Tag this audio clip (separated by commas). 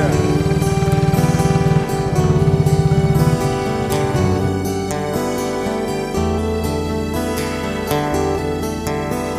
Music